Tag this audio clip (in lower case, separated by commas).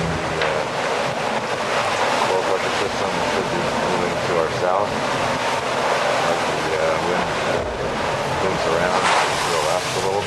speech, ocean, sailboat, water vehicle, vehicle